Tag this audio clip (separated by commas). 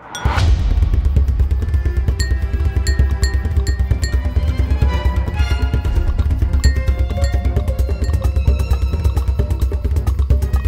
slot machine